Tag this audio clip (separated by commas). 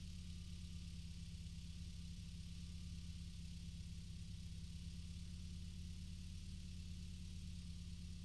Motor vehicle (road), Vehicle, Car